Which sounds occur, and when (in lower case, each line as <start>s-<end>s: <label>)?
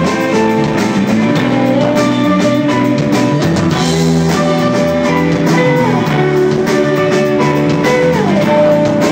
0.0s-9.1s: music